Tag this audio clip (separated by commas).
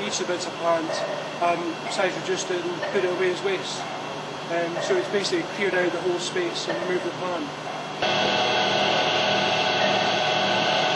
Speech